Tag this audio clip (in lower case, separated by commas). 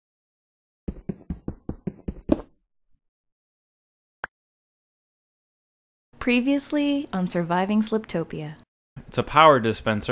speech, inside a small room